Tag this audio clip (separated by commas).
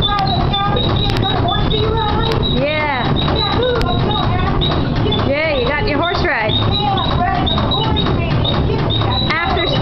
Speech